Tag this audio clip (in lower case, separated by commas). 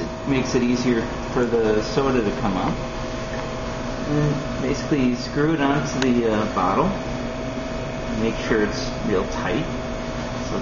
speech